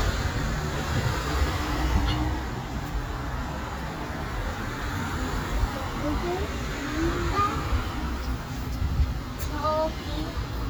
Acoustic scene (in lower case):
street